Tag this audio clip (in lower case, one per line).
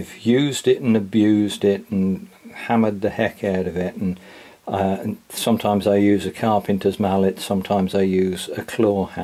speech